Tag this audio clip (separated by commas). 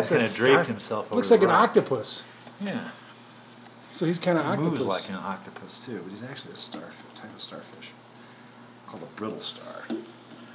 Speech